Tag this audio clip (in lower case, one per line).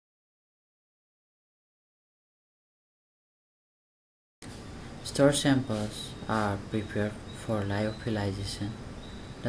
speech
inside a small room